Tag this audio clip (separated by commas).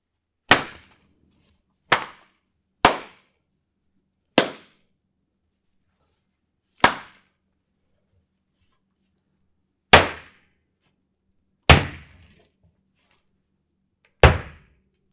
Hands